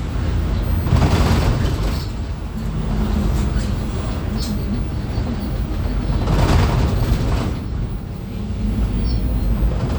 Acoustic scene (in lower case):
bus